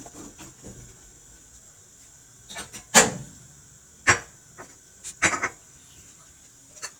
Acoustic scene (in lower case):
kitchen